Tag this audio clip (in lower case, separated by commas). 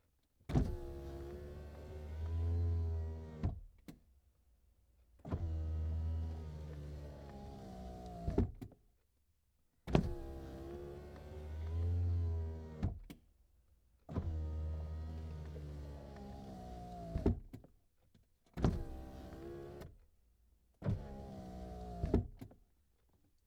vehicle, motor vehicle (road)